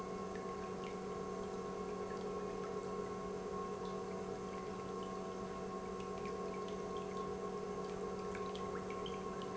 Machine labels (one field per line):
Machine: pump